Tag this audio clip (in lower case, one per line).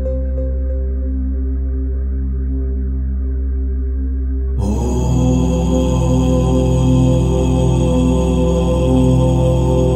mantra